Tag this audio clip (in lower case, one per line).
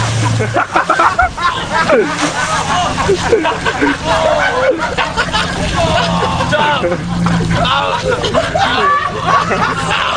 vehicle